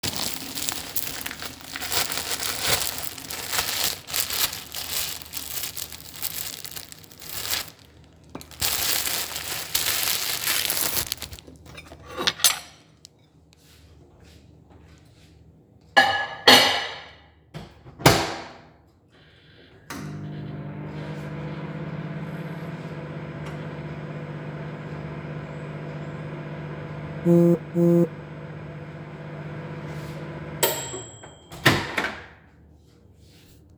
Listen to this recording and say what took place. I opened a bag of bread and placed the bread on a plate. I then warmed up the bread in a microwave.